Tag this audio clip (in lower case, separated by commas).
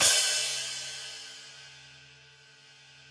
musical instrument, cymbal, music, hi-hat, percussion